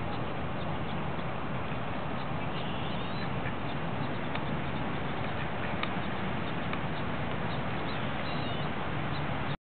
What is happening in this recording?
Natural outdoor sounds with low frequency chirping in the background